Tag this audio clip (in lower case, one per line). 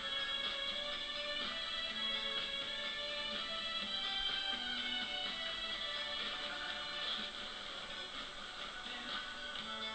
music